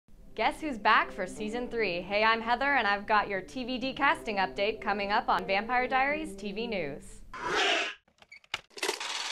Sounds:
inside a small room, music, speech

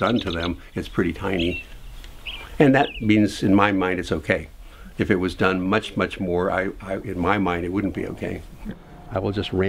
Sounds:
speech

